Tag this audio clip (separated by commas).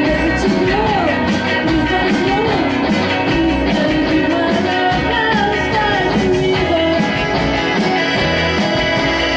Country, Music